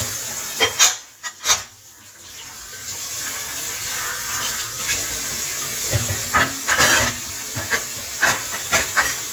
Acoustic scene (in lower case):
kitchen